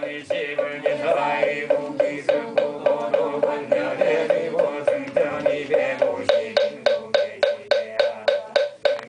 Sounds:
mantra

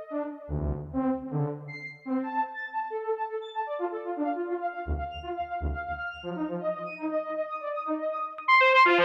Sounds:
music
sampler

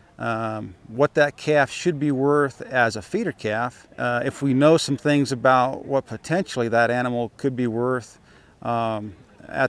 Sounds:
speech

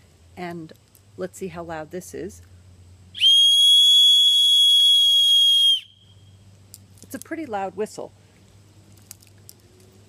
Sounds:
whistle
speech

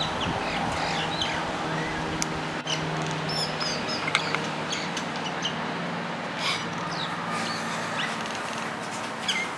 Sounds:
bird

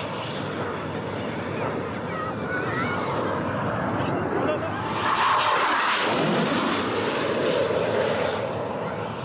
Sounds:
airplane flyby

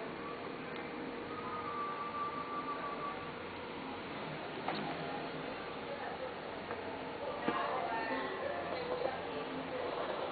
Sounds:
speech

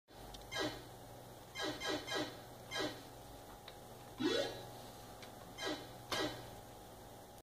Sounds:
sound effect

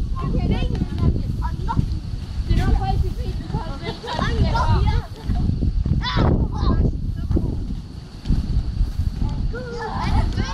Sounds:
speech

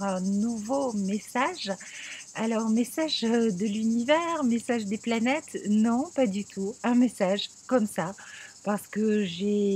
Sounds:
speech

